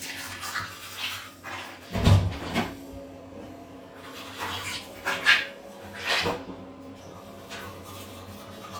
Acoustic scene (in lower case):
restroom